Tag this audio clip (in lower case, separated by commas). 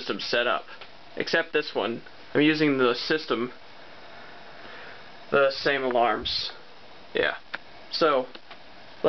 speech